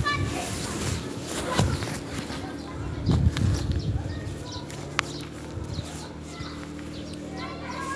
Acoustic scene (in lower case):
residential area